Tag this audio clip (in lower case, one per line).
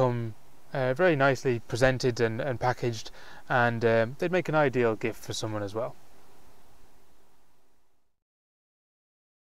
speech